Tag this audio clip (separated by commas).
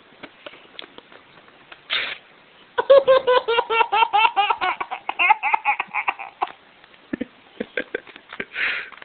baby laughter